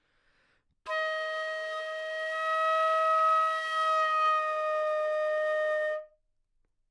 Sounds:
music
woodwind instrument
musical instrument

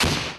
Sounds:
explosion

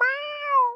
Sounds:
cat
animal
domestic animals
meow

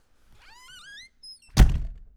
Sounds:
slam
door
domestic sounds
squeak

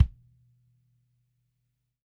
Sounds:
musical instrument
music
percussion
bass drum
drum

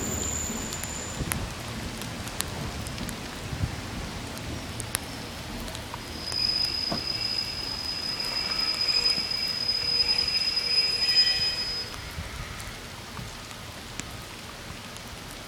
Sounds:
vehicle
rail transport
rain
water
train

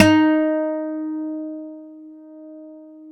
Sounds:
plucked string instrument
musical instrument
acoustic guitar
guitar
music

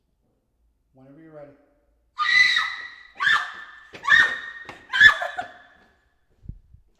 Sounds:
human voice
screaming

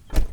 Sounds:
motor vehicle (road)
car
vehicle

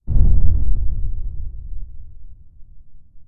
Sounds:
explosion
boom

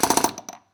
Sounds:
tools

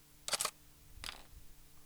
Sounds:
domestic sounds
cutlery

